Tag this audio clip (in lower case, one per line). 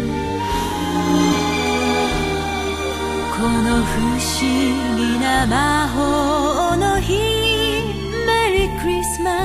music
christmas music